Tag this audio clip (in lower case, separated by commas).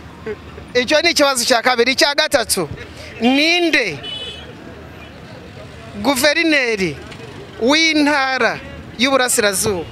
speech